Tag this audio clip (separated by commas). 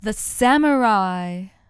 Speech, Human voice, woman speaking